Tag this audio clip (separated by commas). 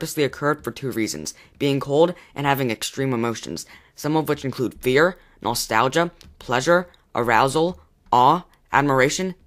Speech